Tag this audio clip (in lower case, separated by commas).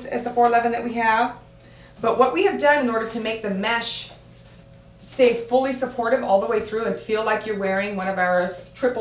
speech